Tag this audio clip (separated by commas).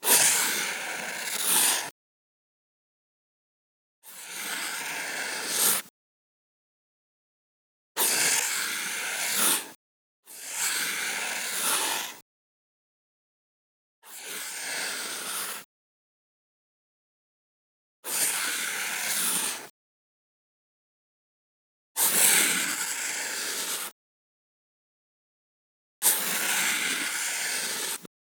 Writing, home sounds